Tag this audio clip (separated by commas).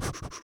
Respiratory sounds, Breathing